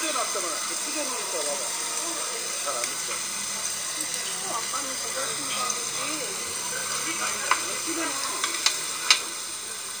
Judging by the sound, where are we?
in a restaurant